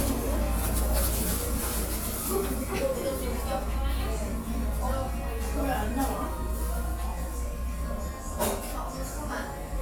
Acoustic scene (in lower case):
cafe